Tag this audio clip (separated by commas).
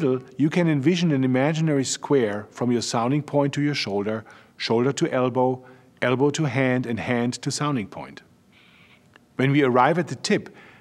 Speech